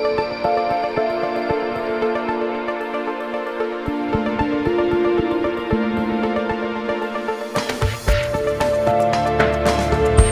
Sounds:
Music

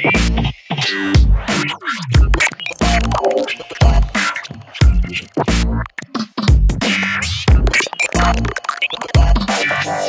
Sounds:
Music

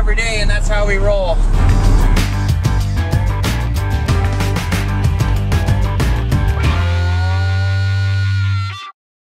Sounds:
Music, Vehicle, Speech

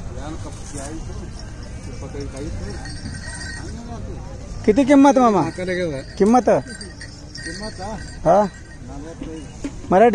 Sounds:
bull bellowing

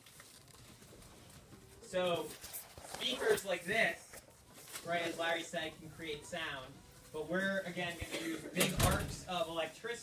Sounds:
Speech

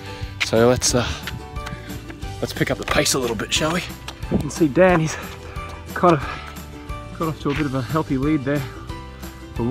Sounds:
Music, Speech

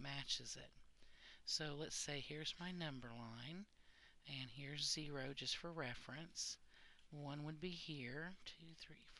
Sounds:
Speech

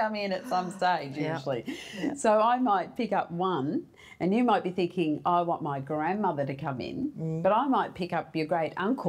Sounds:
Speech, Female speech, Conversation

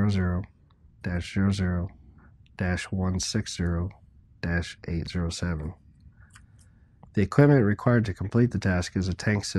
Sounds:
Speech

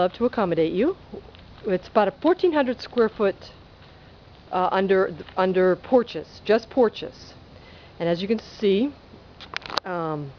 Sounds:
Speech

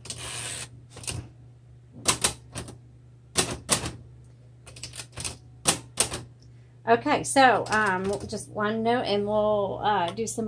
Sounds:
typing on typewriter

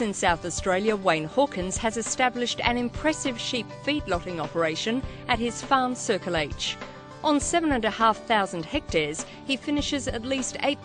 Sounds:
Music, Speech

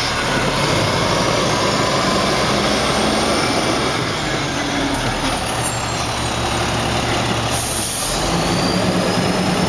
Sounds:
Air brake, outside, urban or man-made, Truck, Vehicle

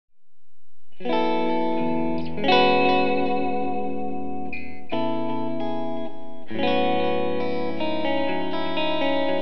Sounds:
Musical instrument, Music, Bass guitar, Electric guitar, Effects unit, Guitar, Plucked string instrument

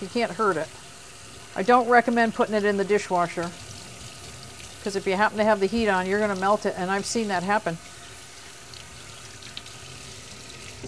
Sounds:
Speech, faucet, inside a small room, Sink (filling or washing)

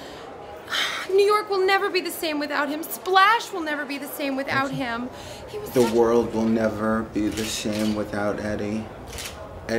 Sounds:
Speech

